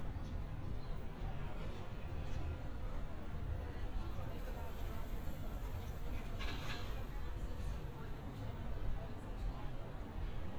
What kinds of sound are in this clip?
person or small group talking